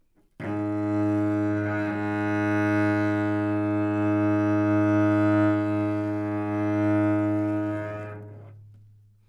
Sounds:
musical instrument, music, bowed string instrument

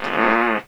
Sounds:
fart

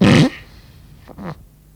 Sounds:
fart

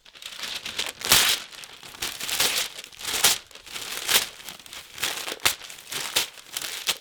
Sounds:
tearing

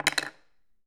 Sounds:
silverware, home sounds

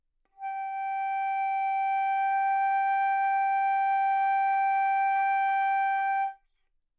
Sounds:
music, wind instrument, musical instrument

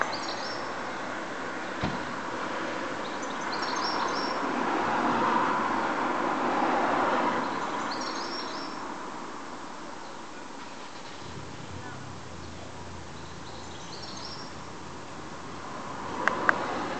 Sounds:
bird, wild animals, bird song, animal

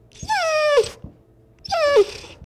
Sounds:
domestic animals, dog, animal

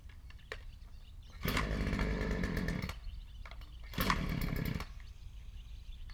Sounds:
engine

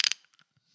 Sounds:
ratchet, mechanisms, tools

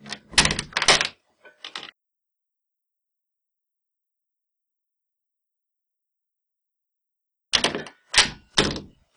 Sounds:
domestic sounds, door, slam

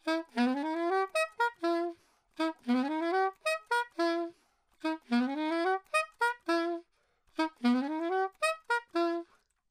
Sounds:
music, musical instrument, woodwind instrument

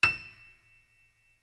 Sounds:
music, piano, keyboard (musical), musical instrument

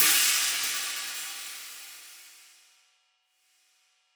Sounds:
music, cymbal, musical instrument, hi-hat, percussion

